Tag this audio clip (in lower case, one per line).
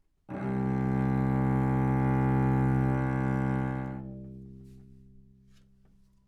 music
bowed string instrument
musical instrument